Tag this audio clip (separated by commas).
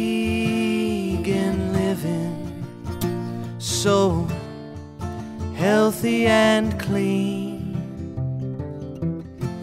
Music